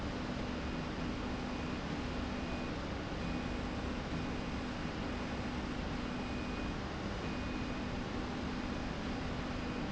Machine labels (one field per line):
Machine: slide rail